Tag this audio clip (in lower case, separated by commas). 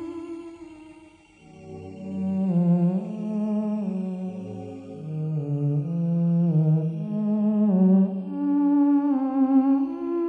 playing theremin